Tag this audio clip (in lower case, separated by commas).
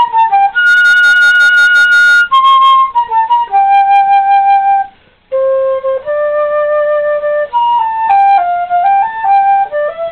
music, flute, playing flute